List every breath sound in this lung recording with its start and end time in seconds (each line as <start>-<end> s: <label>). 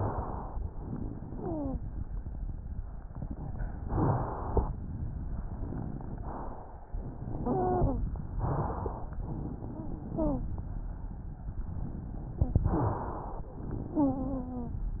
0.56-1.79 s: exhalation
1.29-1.79 s: wheeze
3.81-4.68 s: inhalation
6.16-6.97 s: inhalation
6.95-8.11 s: exhalation
7.43-7.93 s: wheeze
8.35-9.20 s: inhalation
9.20-10.48 s: exhalation
9.68-10.48 s: wheeze
12.65-13.51 s: inhalation
13.59-14.80 s: exhalation
13.91-14.80 s: wheeze